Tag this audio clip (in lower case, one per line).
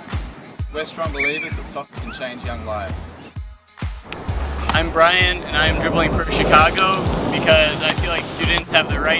speech
music